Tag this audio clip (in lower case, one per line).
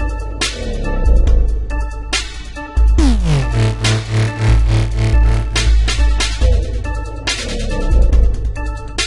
electronic music
dubstep
music